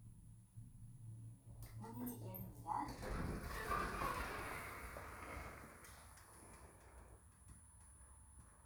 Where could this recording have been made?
in an elevator